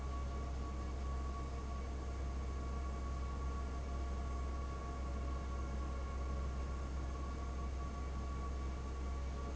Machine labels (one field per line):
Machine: fan